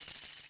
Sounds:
Tambourine, Musical instrument, Music, Percussion

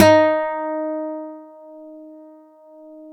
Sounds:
Plucked string instrument, Music, Guitar, Musical instrument, Acoustic guitar

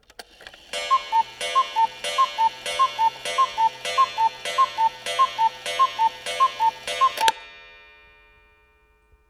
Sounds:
Clock, Mechanisms

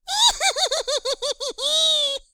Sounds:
Human voice, Laughter

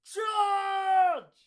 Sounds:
Human voice, Shout

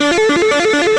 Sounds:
Plucked string instrument, Musical instrument, Music, Guitar, Electric guitar

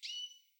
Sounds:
Wild animals, Bird vocalization, tweet, Bird, Animal

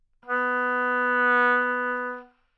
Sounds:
Musical instrument, Music, Wind instrument

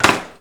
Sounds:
Door, dishes, pots and pans, Wood, Domestic sounds

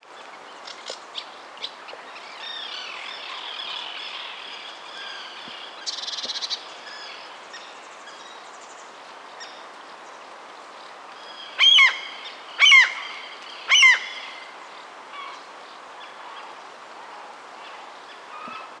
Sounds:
Bird vocalization, Animal, Wild animals, Bird

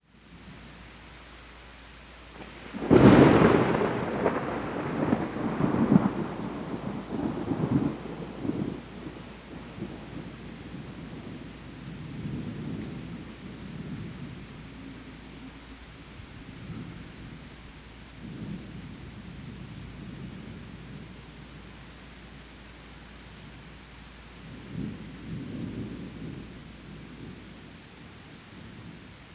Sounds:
Thunder, Thunderstorm

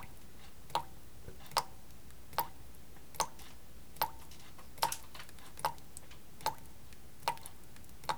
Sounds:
Water tap, home sounds

